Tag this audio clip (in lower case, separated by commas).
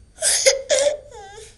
human voice, sobbing